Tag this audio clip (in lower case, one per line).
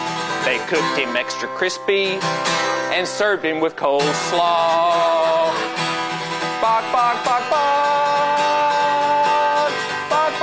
musical instrument
music